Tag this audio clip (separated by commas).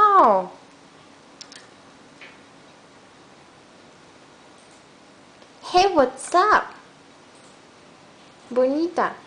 Speech